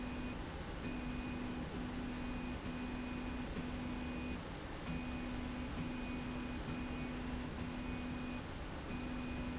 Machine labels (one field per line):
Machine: slide rail